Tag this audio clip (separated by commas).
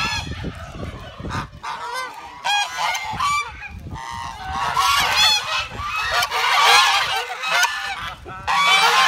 goose honking